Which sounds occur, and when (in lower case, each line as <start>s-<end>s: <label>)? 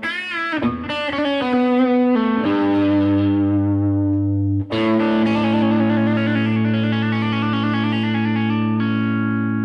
0.0s-9.6s: music